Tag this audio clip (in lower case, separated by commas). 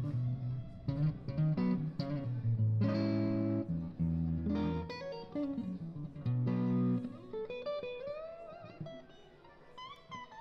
musical instrument, music, strum, plucked string instrument, guitar